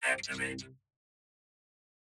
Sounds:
human voice, speech

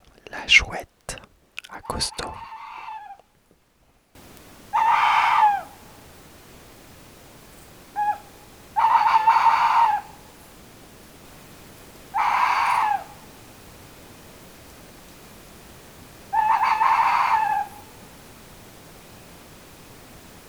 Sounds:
wild animals, bird, animal

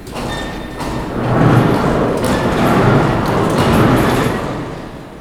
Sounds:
mechanisms

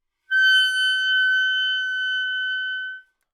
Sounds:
music, musical instrument, wind instrument

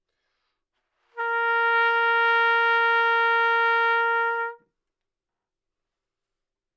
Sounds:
music, trumpet, brass instrument, musical instrument

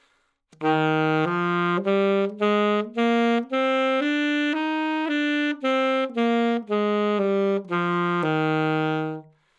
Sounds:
wind instrument, music, musical instrument

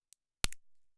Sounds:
crack

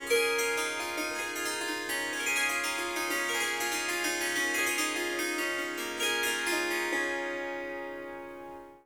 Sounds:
musical instrument, music, harp

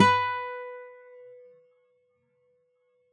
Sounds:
acoustic guitar, guitar, plucked string instrument, music, musical instrument

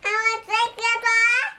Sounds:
human voice, speech

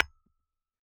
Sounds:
tap, glass, hammer, tools

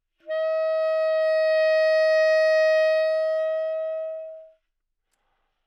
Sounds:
woodwind instrument, musical instrument, music

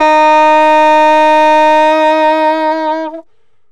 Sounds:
musical instrument, woodwind instrument, music

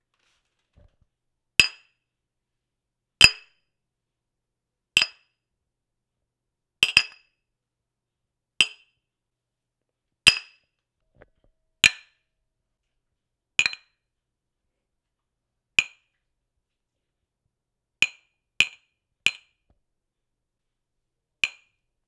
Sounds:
tap

